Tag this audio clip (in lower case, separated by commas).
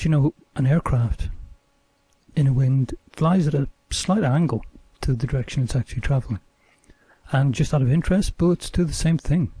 speech